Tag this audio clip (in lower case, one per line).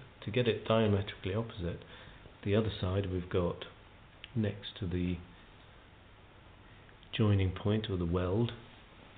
speech